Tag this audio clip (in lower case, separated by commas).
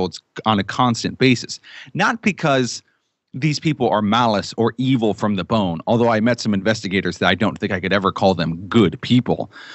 speech